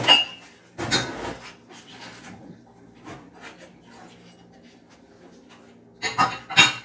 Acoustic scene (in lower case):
kitchen